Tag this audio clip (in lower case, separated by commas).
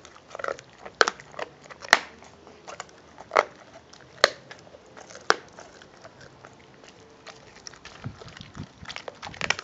animal, crackle, biting, pets, dog, canids, chewing